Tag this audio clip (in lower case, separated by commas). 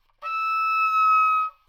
music, wind instrument, musical instrument